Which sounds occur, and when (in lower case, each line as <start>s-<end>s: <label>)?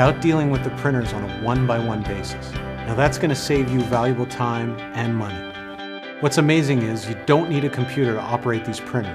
0.0s-0.7s: male speech
0.0s-9.1s: music
0.8s-1.3s: male speech
1.4s-2.3s: male speech
2.9s-4.8s: male speech
5.0s-5.4s: male speech
6.2s-7.2s: male speech
7.3s-9.1s: male speech